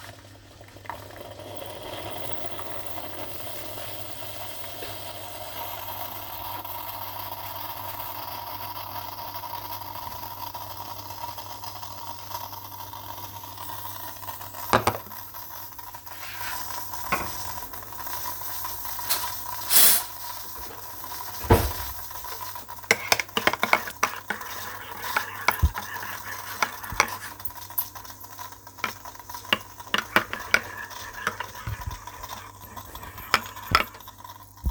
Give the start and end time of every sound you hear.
0.0s-34.7s: coffee machine
19.1s-20.2s: cutlery and dishes
21.3s-21.9s: wardrobe or drawer
22.8s-34.7s: cutlery and dishes

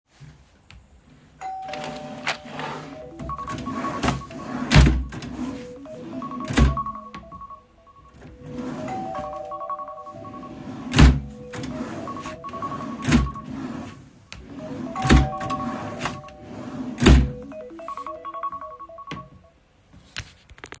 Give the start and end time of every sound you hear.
1.4s-2.6s: bell ringing
3.2s-5.4s: phone ringing
3.8s-5.2s: wardrobe or drawer
5.4s-7.2s: wardrobe or drawer
6.0s-8.2s: phone ringing
8.3s-11.5s: wardrobe or drawer
8.6s-10.9s: phone ringing
8.8s-10.1s: bell ringing
11.5s-13.9s: phone ringing
11.7s-14.0s: wardrobe or drawer
14.2s-17.5s: wardrobe or drawer
14.5s-16.5s: phone ringing
14.9s-16.2s: bell ringing
17.5s-19.6s: phone ringing

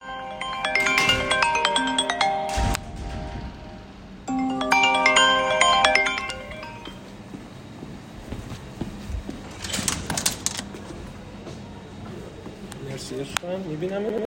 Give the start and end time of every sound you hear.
0.1s-2.7s: phone ringing
4.4s-6.5s: phone ringing
6.8s-9.5s: footsteps

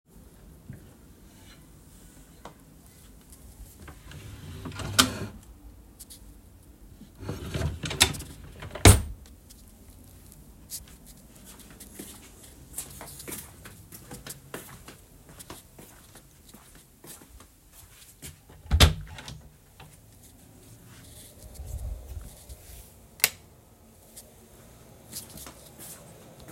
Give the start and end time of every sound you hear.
4.0s-5.4s: wardrobe or drawer
7.1s-9.3s: wardrobe or drawer
11.9s-18.4s: footsteps
18.6s-19.4s: door
23.0s-23.5s: light switch
25.0s-26.5s: footsteps

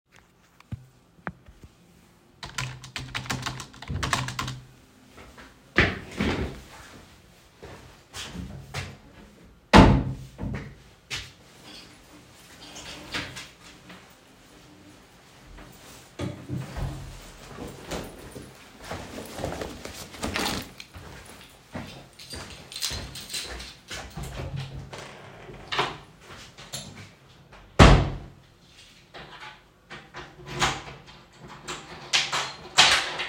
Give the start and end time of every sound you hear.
2.3s-4.8s: keyboard typing
5.5s-9.4s: footsteps
9.6s-11.3s: wardrobe or drawer
10.4s-11.5s: footsteps
12.6s-13.6s: wardrobe or drawer
16.1s-18.9s: wardrobe or drawer
20.1s-21.0s: keys
21.5s-24.4s: footsteps
22.0s-24.4s: keys
23.9s-25.1s: wardrobe or drawer
25.3s-26.4s: door
27.6s-28.7s: door
29.9s-33.3s: door

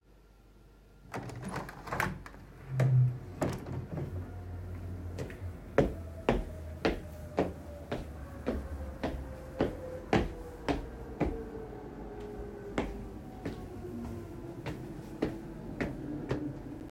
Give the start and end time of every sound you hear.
1.1s-4.4s: window
5.4s-12.0s: footsteps
12.7s-16.7s: footsteps

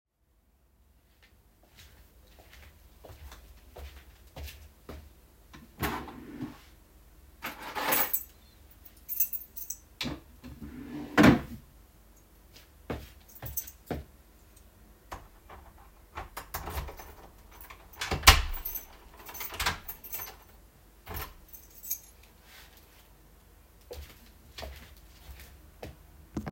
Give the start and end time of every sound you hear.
1.7s-5.1s: footsteps
5.5s-6.7s: wardrobe or drawer
7.3s-10.3s: keys
10.4s-11.8s: wardrobe or drawer
12.8s-14.1s: footsteps
13.5s-14.7s: keys
15.1s-21.4s: door
18.4s-20.5s: keys
21.4s-22.1s: keys
23.8s-26.0s: footsteps

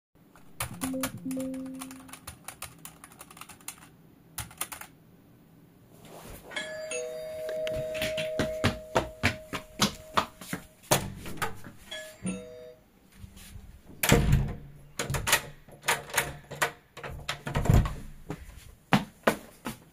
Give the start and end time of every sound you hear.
0.5s-5.0s: keyboard typing
6.4s-10.7s: bell ringing
7.5s-10.7s: footsteps
10.8s-11.8s: door
11.7s-13.0s: bell ringing
13.9s-18.7s: door
18.8s-19.9s: footsteps

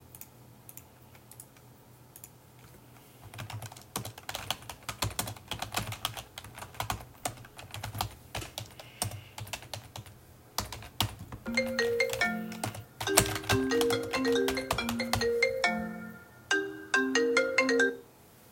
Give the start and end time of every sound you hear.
3.2s-15.6s: keyboard typing
11.4s-18.0s: phone ringing

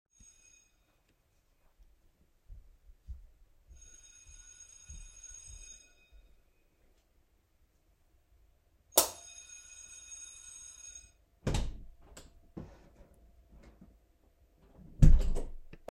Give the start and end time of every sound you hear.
0.2s-1.1s: bell ringing
3.6s-6.6s: bell ringing
8.4s-11.3s: bell ringing
8.8s-9.3s: light switch
11.4s-13.2s: door
14.9s-15.8s: door

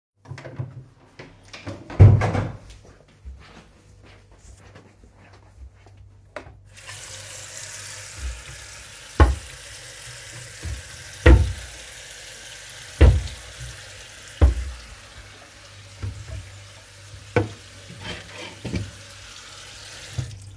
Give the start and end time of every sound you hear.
0.2s-3.6s: door
3.6s-6.7s: footsteps
6.8s-20.6s: running water
9.1s-9.6s: wardrobe or drawer
11.0s-11.7s: wardrobe or drawer
12.9s-13.4s: wardrobe or drawer
14.2s-14.8s: wardrobe or drawer
17.3s-18.9s: wardrobe or drawer

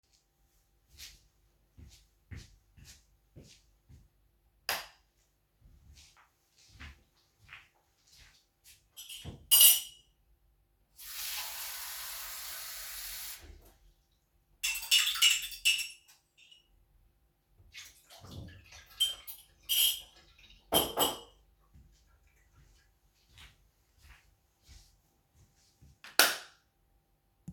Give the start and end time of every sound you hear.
0.9s-1.3s: footsteps
1.8s-4.1s: footsteps
4.6s-5.0s: light switch
5.9s-6.7s: footsteps
6.7s-8.9s: footsteps
10.9s-13.6s: running water
23.1s-25.7s: footsteps
26.0s-26.6s: light switch

